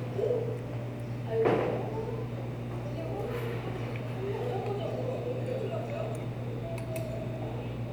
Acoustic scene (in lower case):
restaurant